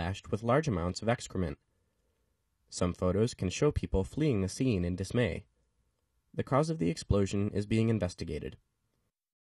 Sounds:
speech

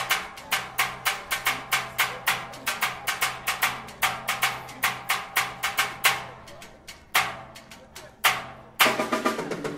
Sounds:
music

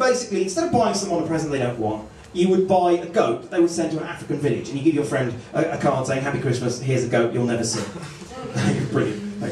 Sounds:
speech

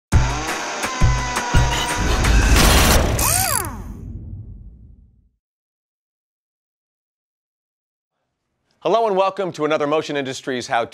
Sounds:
speech
music

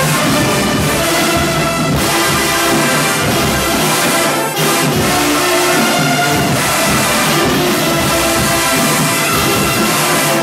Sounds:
people marching

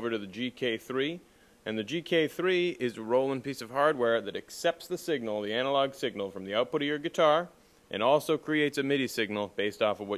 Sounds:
speech

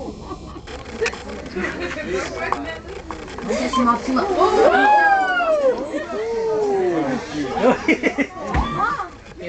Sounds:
outside, urban or man-made
speech

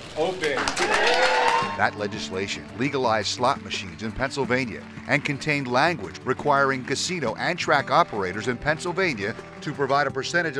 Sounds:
speech
music

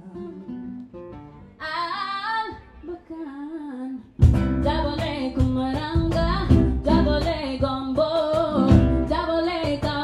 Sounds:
music

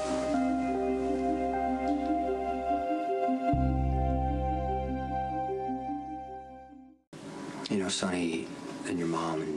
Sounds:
speech
music
new-age music

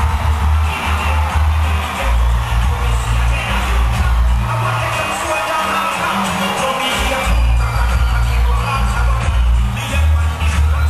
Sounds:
music

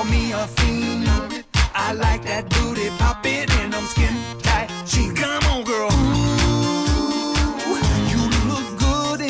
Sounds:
soul music
music
progressive rock

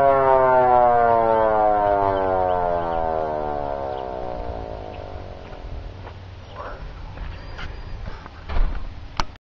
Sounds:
siren

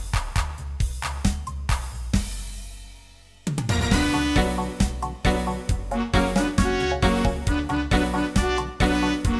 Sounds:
music

